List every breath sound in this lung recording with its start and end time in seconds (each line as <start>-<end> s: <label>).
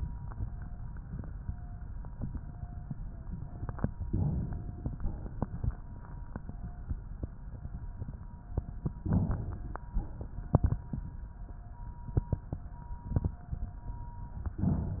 4.10-4.95 s: inhalation
4.95-5.77 s: exhalation
9.11-9.92 s: inhalation
9.92-10.80 s: exhalation